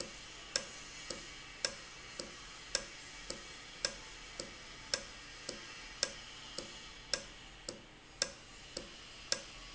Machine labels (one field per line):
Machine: valve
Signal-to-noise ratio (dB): 6 dB